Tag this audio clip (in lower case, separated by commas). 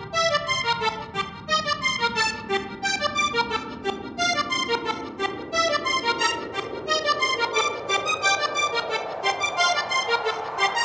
accordion, music, electronic dance music, house music, dance music